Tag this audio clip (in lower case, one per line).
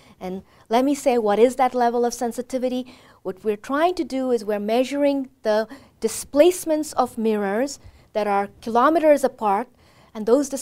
speech